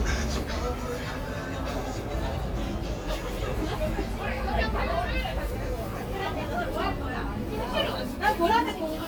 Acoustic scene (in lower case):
street